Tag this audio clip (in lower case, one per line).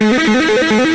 plucked string instrument
electric guitar
musical instrument
guitar
music